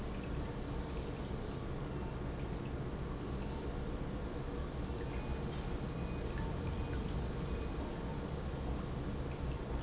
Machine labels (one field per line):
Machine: pump